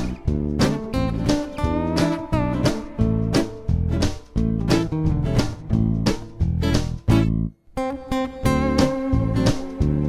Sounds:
music, independent music, dance music, blues, tender music

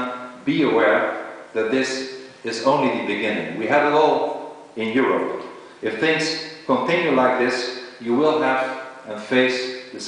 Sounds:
man speaking, speech

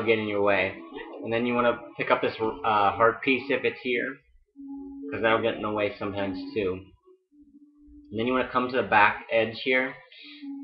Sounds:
speech, music

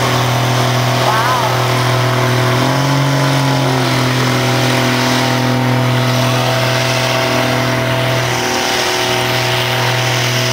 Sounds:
vehicle, truck

